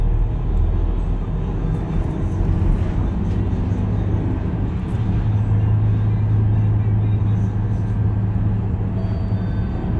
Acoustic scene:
bus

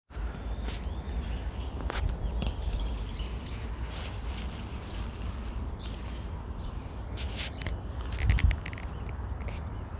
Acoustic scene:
park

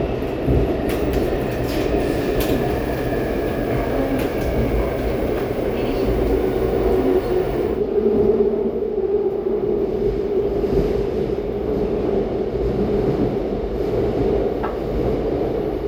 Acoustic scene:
subway train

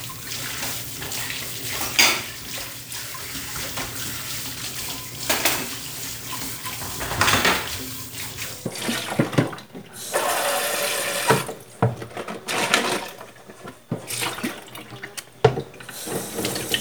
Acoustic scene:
kitchen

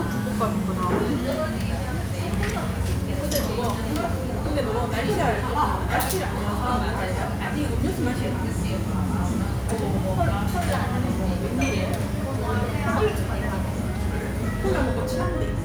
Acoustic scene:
restaurant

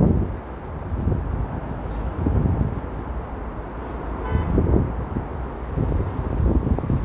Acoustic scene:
street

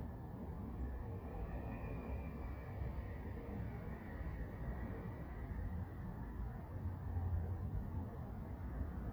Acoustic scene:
residential area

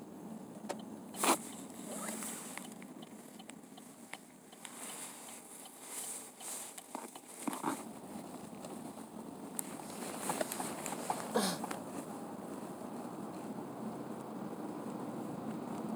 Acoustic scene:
car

